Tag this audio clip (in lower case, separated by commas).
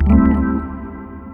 organ, keyboard (musical), musical instrument, music